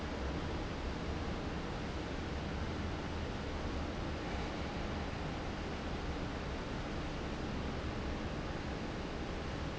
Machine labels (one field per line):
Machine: fan